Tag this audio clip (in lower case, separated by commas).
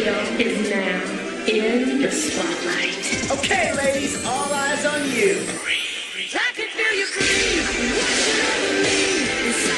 speech, music